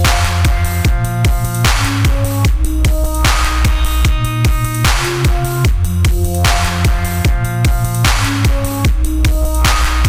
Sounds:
music, drum and bass

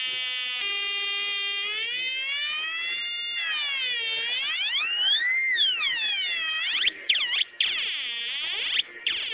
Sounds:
siren, music, synthesizer

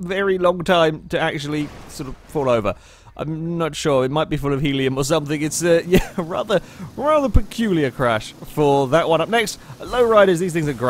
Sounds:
speech

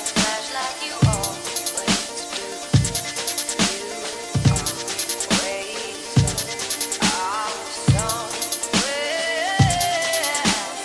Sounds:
electronic music, dubstep, music

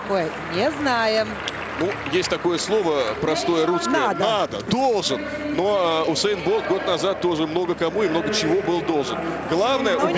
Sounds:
speech, music, outside, urban or man-made

